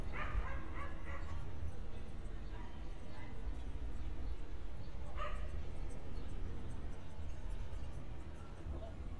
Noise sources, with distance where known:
dog barking or whining, far

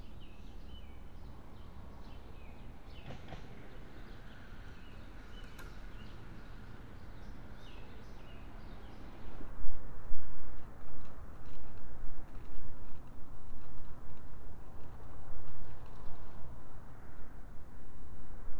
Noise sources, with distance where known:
background noise

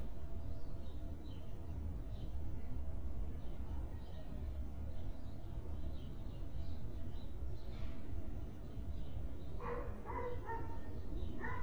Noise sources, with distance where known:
dog barking or whining

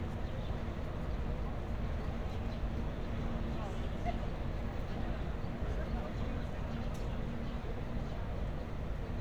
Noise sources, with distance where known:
unidentified human voice, far

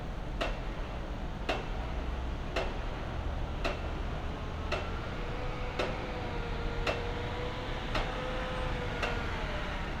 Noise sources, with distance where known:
engine of unclear size
unidentified impact machinery

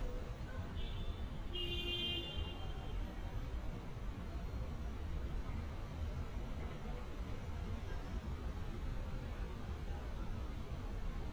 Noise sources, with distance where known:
car horn, near

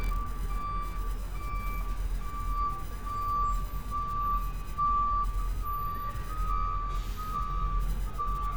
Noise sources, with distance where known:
reverse beeper, near

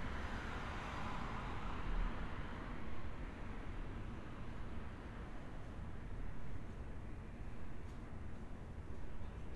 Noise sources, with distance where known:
engine of unclear size

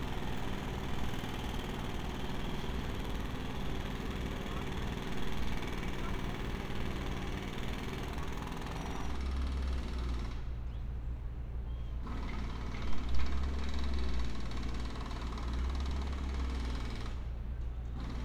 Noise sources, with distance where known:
jackhammer

